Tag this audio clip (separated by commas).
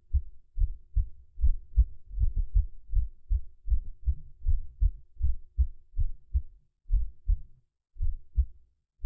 heartbeat, Throbbing